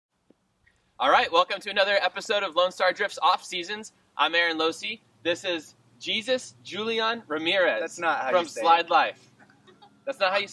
Male speaking and introducing other people